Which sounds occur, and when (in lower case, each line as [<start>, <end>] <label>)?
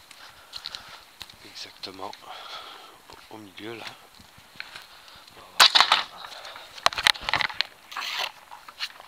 [0.00, 9.05] background noise
[0.15, 0.38] footsteps
[0.34, 0.95] man speaking
[0.57, 0.93] footsteps
[1.10, 1.45] footsteps
[1.62, 1.89] footsteps
[2.06, 2.46] footsteps
[2.61, 3.12] generic impact sounds
[3.14, 3.93] breathing
[3.25, 4.71] generic impact sounds
[4.93, 5.39] generic impact sounds
[5.64, 5.89] generic impact sounds
[6.17, 6.79] man speaking
[7.17, 7.71] generic impact sounds
[7.41, 8.18] human sounds
[8.24, 8.48] generic impact sounds
[8.66, 8.90] generic impact sounds